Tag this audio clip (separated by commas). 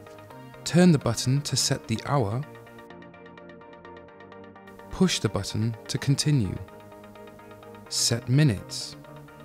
Speech, Music